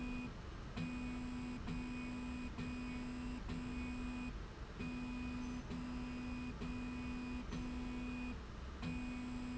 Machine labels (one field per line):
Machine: slide rail